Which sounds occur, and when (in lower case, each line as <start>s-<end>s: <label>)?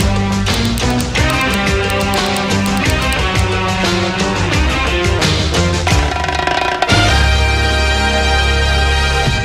0.0s-9.4s: music
5.9s-6.8s: sound effect